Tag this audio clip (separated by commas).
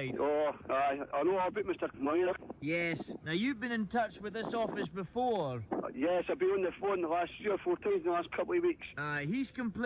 Radio, Speech